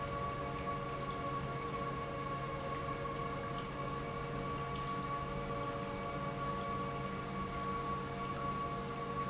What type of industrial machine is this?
pump